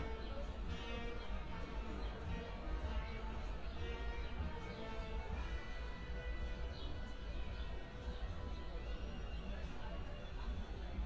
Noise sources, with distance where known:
music from an unclear source, near; unidentified human voice, far

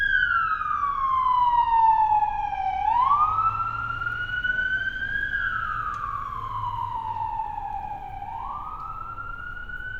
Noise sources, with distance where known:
siren

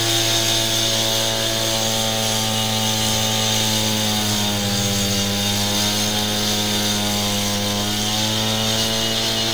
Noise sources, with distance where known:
large rotating saw, near

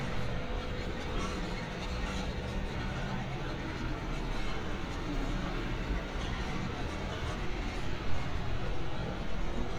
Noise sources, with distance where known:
large-sounding engine, near

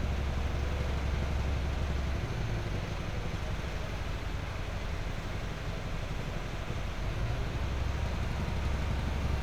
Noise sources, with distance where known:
unidentified impact machinery

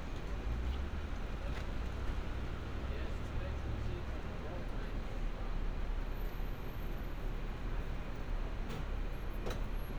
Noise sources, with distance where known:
person or small group talking

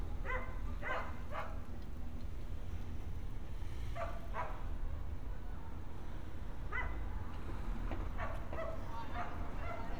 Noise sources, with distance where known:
dog barking or whining, near

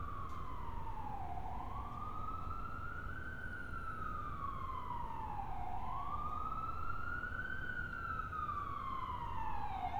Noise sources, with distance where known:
siren, near

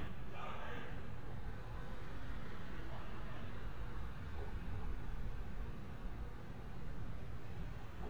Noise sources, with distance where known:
person or small group shouting, far

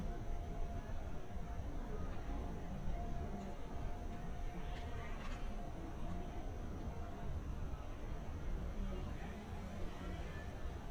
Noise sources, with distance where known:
person or small group talking, far

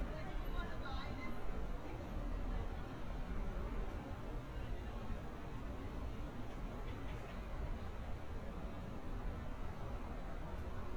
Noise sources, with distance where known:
person or small group talking, far

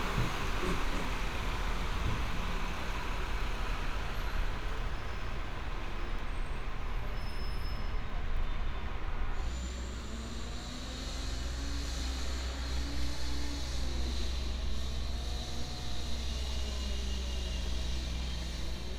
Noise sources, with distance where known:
large-sounding engine

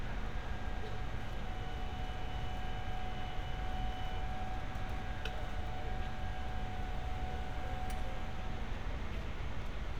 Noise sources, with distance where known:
engine of unclear size

